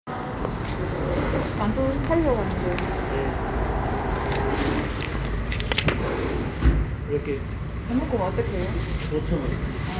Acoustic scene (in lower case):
street